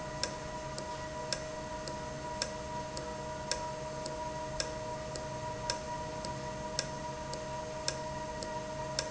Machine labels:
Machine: valve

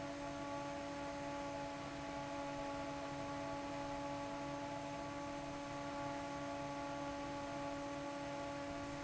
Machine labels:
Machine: fan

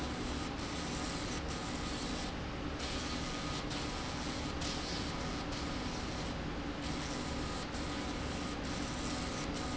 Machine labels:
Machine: slide rail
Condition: abnormal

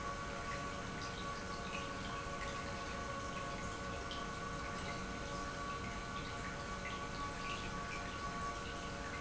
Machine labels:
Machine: pump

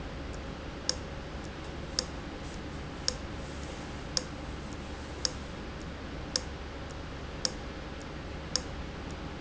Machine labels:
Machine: valve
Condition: abnormal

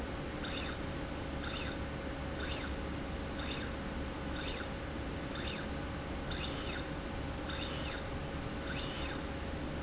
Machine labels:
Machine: slide rail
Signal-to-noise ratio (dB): -6 dB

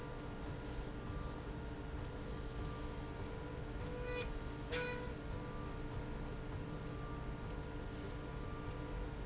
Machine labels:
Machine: slide rail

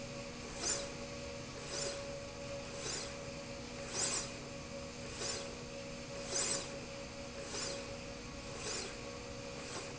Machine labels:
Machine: slide rail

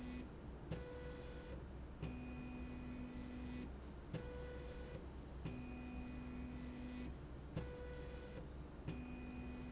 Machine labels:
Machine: slide rail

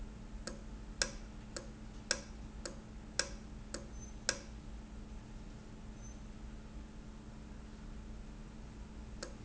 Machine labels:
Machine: valve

